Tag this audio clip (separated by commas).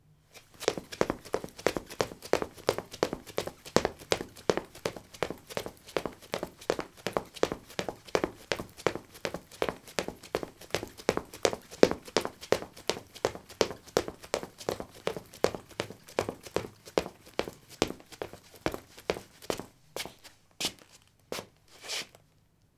Run